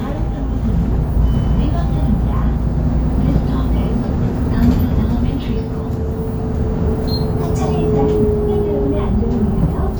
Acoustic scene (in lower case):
bus